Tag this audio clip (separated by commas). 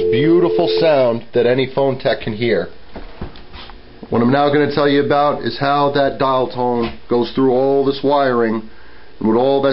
Speech, Telephone, Dial tone